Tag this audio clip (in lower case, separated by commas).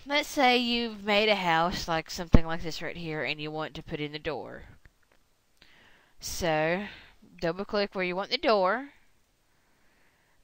speech